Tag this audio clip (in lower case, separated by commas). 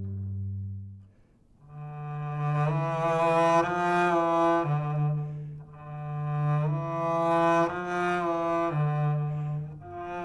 playing double bass